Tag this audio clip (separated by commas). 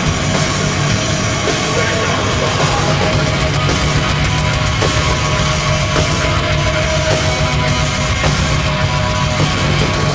Music